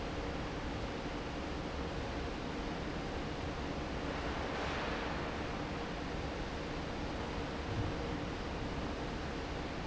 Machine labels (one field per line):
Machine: fan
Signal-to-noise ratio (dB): -6 dB